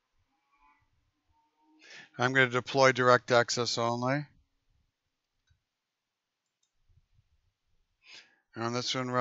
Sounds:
Speech, inside a small room

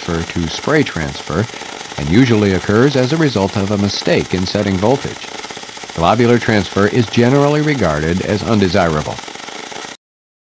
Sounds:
Speech

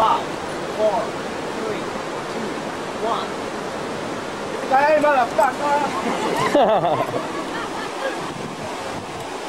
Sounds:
outside, rural or natural, Speech

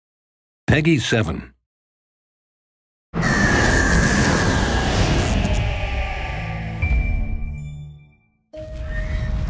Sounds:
Speech, Music

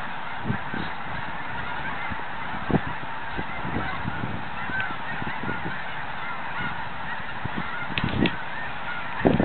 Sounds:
Duck, Bird

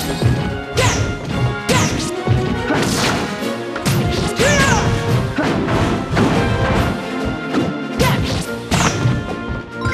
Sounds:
Music

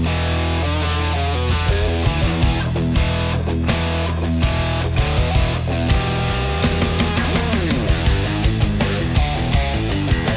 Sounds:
Music, Rhythm and blues, Funk

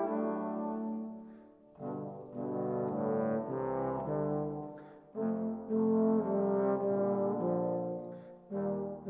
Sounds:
playing trombone

